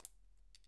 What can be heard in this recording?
object falling on carpet